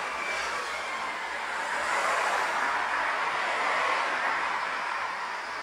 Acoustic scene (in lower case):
street